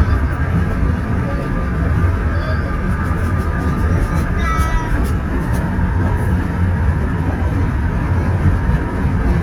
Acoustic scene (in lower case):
car